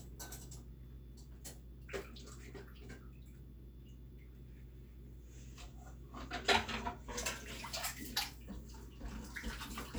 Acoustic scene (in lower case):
kitchen